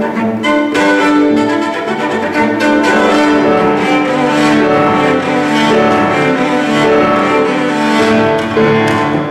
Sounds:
playing cello, Music, Bowed string instrument, Cello, Musical instrument

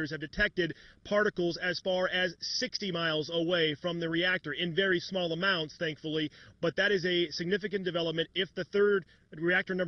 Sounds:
Speech

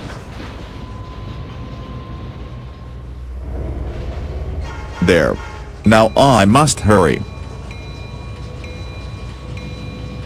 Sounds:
Vehicle, Railroad car, Speech, Train

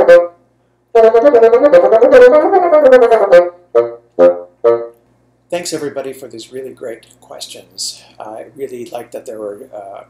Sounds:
playing bassoon

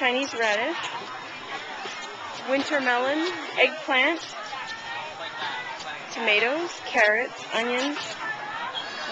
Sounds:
Speech

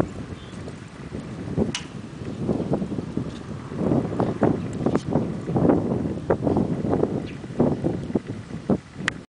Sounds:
Animal, Clip-clop

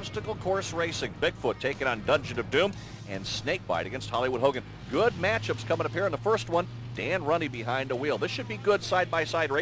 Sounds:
Vehicle, Music, Speech

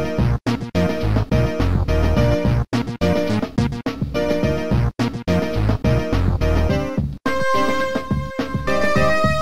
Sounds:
Music

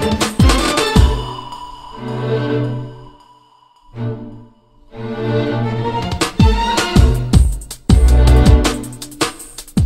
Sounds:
Roll, Music

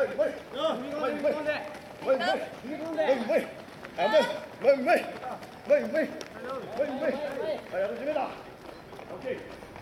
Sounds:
Speech, Run, outside, urban or man-made

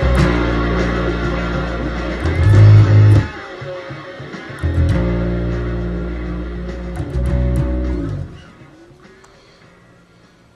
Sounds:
Plucked string instrument, Bass guitar, Music, Musical instrument, Guitar

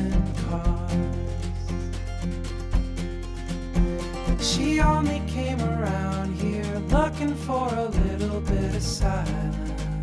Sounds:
Music, Rhythm and blues

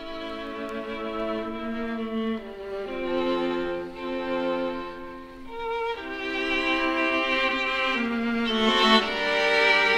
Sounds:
Musical instrument, fiddle, Music

